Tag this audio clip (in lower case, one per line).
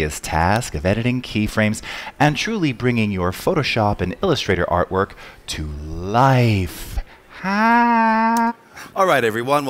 speech